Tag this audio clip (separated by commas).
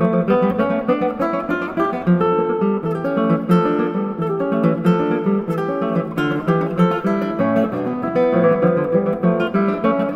Musical instrument, Plucked string instrument, Guitar, Strum, Music, Acoustic guitar